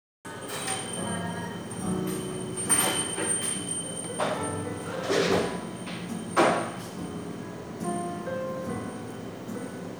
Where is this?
in a cafe